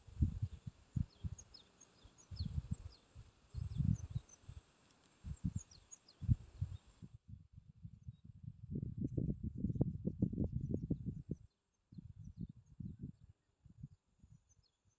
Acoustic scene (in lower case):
park